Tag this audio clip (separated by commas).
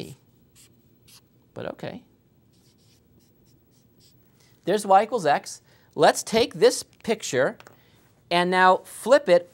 Writing, Speech